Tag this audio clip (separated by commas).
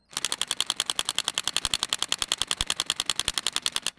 Tools